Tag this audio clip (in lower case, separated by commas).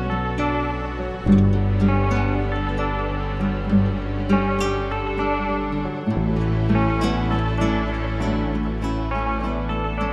music